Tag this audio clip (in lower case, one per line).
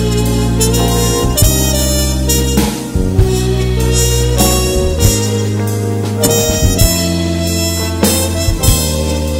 music